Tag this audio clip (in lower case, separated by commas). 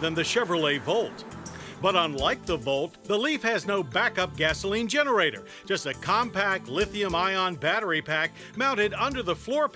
speech, music